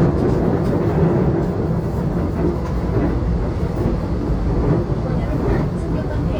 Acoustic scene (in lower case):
subway train